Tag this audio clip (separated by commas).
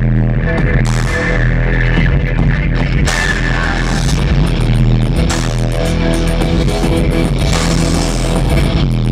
Music, Country